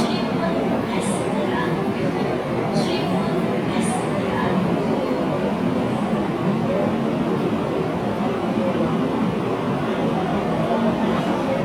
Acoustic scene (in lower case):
subway train